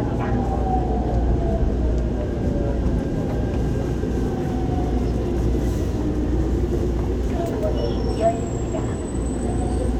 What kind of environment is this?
subway train